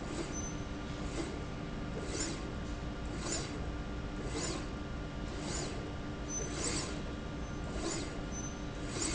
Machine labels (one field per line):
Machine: slide rail